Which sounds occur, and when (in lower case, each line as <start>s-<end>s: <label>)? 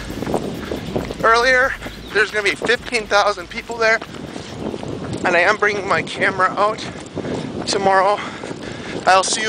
0.0s-1.2s: wind noise (microphone)
0.0s-9.4s: run
0.0s-9.4s: wind
0.6s-1.0s: breathing
1.0s-1.1s: tick
1.2s-1.7s: male speech
1.6s-1.9s: breathing
1.8s-1.9s: wind noise (microphone)
1.9s-2.2s: chirp
2.1s-3.9s: male speech
2.5s-2.8s: wind noise (microphone)
4.0s-4.5s: breathing
4.0s-9.4s: wind noise (microphone)
4.3s-4.8s: chirp
5.2s-6.9s: male speech
6.9s-7.4s: breathing
7.6s-8.2s: male speech
8.1s-9.0s: breathing